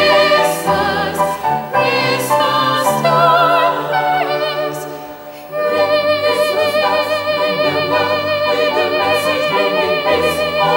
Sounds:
opera, music, gospel music, choir, classical music, singing, keyboard (musical)

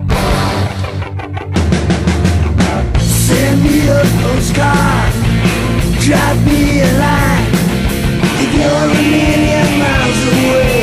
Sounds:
rock music, music, punk rock

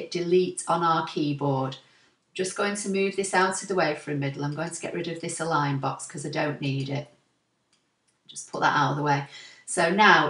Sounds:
speech

